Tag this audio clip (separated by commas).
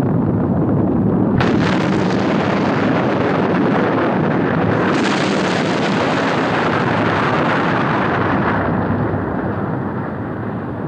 volcano explosion